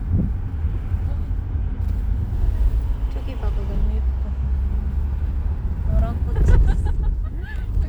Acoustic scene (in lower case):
car